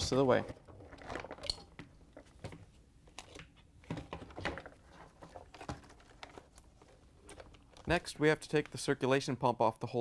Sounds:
speech

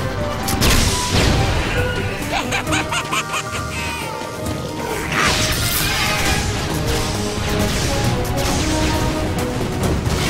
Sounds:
music

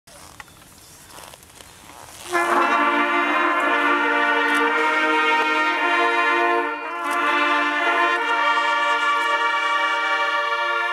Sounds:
outside, urban or man-made
music

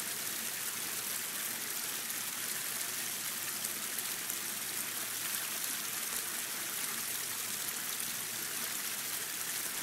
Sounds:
stream burbling

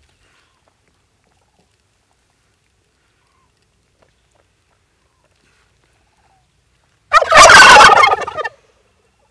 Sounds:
turkey gobbling

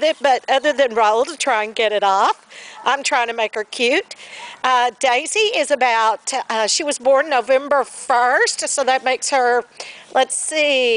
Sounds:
domestic animals
animal
dog

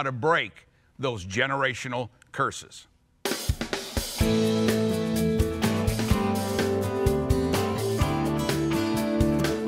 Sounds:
music
speech

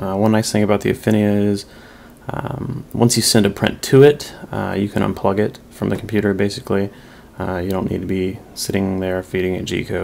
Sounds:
speech

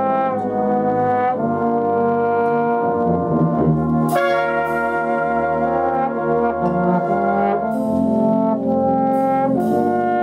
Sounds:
playing trombone
trombone
brass instrument

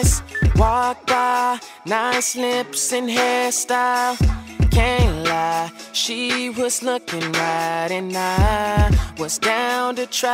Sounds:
rhythm and blues
music

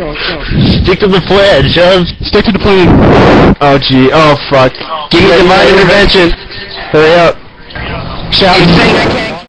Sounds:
speech

